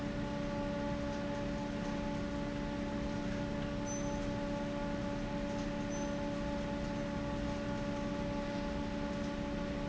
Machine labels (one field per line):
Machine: fan